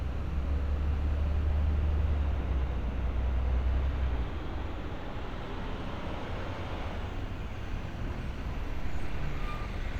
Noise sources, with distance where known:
large-sounding engine

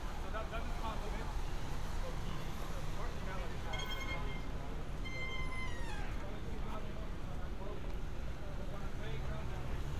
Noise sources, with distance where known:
person or small group talking, near

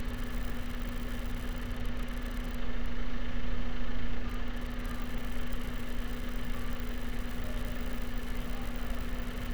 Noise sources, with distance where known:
engine of unclear size, near

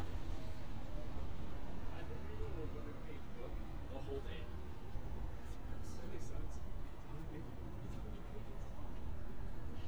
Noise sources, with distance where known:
person or small group talking, near

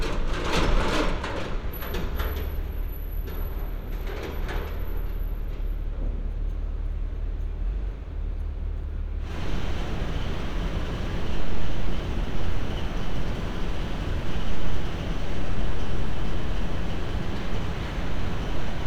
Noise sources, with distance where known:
engine of unclear size

